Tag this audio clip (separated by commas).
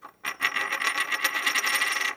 Domestic sounds, Coin (dropping)